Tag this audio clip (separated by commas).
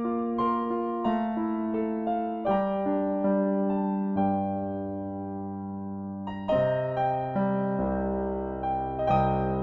Music